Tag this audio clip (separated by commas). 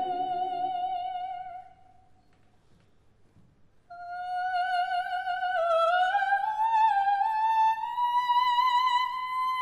inside a large room or hall